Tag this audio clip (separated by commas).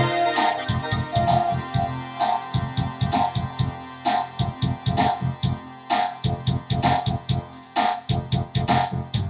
Music, Video game music